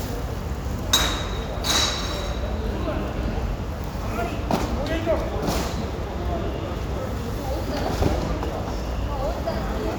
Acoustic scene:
residential area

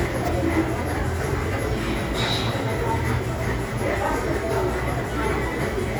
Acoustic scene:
crowded indoor space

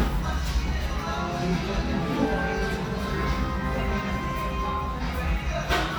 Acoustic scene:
restaurant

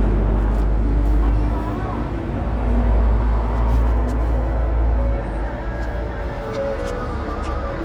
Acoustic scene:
street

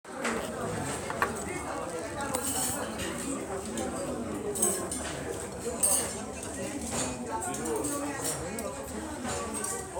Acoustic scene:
restaurant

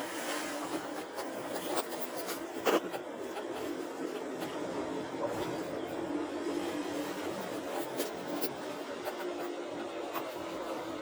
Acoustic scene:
car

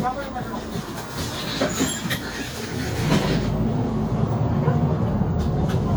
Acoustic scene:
bus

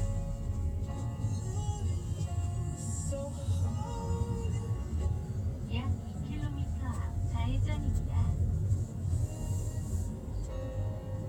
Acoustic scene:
car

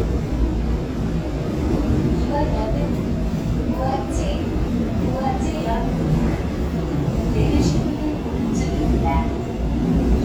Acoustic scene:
subway train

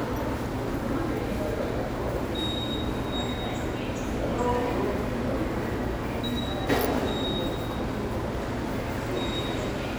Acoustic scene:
subway station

